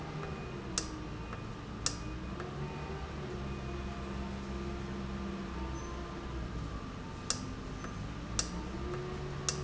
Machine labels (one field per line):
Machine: valve